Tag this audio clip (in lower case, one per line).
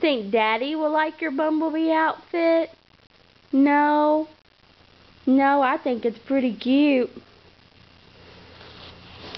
speech